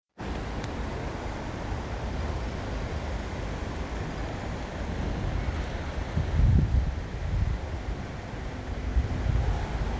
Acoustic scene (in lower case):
street